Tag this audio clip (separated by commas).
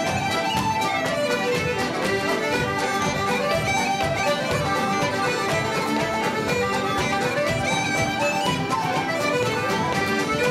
Dance music, Music